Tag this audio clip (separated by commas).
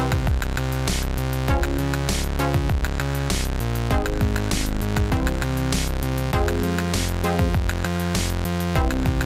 Music